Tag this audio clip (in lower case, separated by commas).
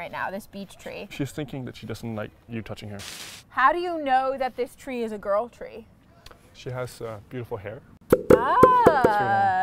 speech